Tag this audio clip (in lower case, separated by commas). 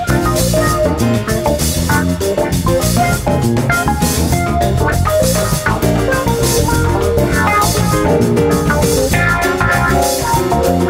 steelpan, music